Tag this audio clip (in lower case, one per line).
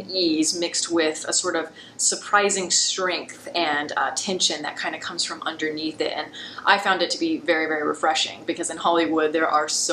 speech